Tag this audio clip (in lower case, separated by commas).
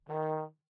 music, musical instrument, brass instrument